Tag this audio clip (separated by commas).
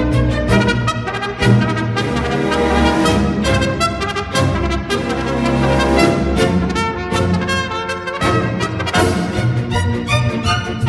playing bugle